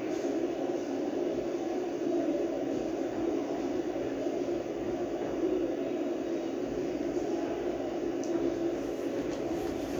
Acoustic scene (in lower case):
subway station